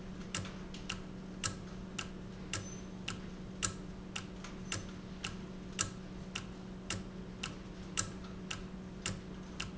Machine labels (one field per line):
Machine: valve